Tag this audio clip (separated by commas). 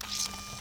Camera, Mechanisms